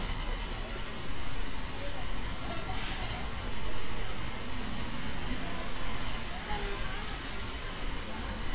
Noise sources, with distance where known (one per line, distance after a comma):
person or small group talking, far